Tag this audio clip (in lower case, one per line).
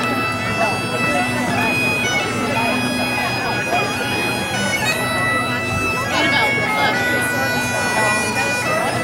playing bagpipes